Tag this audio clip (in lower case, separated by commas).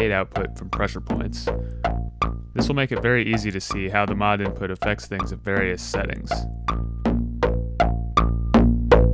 speech, music